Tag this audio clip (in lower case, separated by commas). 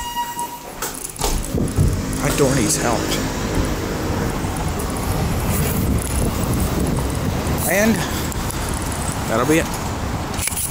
roadway noise